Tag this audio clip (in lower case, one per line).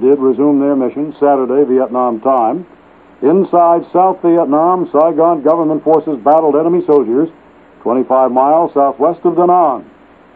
radio
speech